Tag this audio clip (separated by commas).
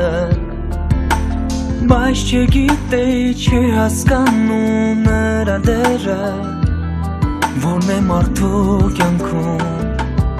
Music